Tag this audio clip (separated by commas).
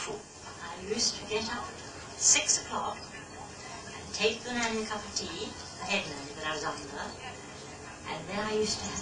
Television, Speech